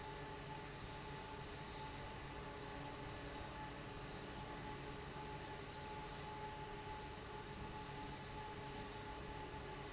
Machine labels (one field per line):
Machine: fan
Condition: abnormal